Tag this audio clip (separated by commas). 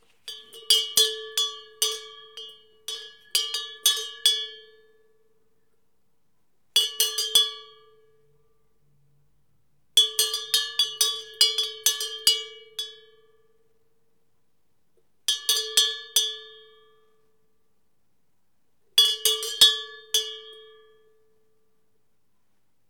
livestock, Animal